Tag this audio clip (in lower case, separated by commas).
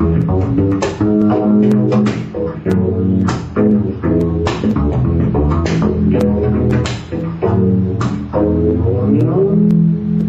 playing double bass